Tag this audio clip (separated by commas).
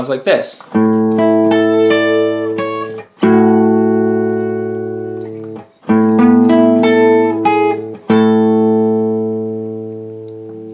Musical instrument, Speech, Guitar, Acoustic guitar, Music, Plucked string instrument